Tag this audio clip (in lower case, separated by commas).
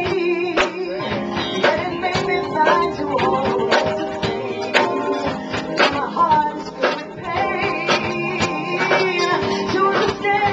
music, female singing